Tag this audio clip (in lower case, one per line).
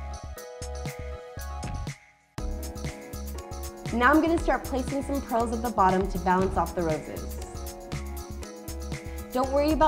speech
music